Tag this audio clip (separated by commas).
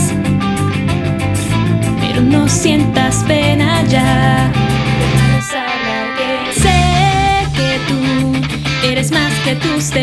Musical instrument, Music, Plucked string instrument, Strum, Guitar, Acoustic guitar